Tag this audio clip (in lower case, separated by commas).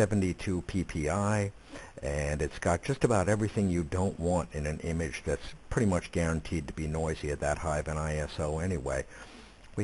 speech